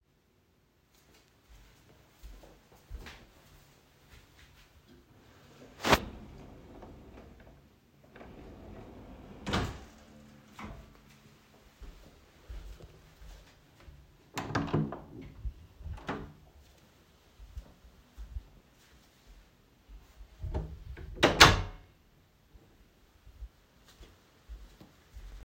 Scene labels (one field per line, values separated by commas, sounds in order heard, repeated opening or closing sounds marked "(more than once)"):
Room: bedroom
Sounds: footsteps, wardrobe or drawer, door (more than once)